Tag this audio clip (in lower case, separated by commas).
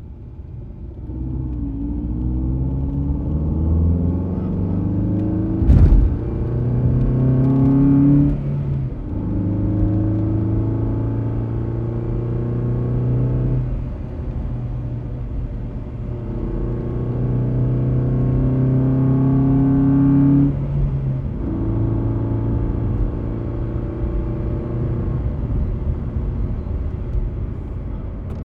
vroom, engine